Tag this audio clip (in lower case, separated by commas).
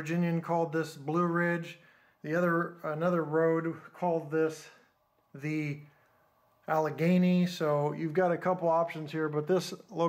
speech